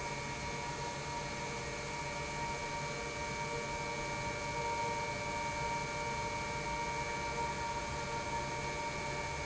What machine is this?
pump